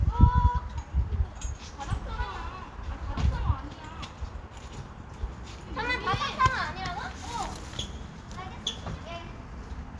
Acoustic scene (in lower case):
park